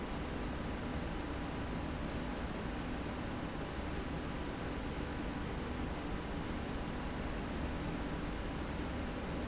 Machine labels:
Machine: slide rail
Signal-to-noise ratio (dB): -6 dB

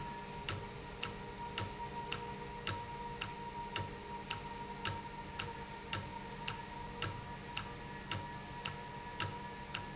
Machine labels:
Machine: valve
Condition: normal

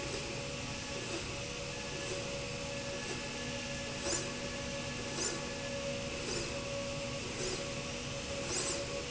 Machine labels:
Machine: slide rail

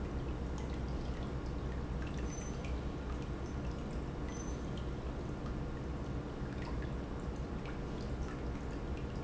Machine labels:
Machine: pump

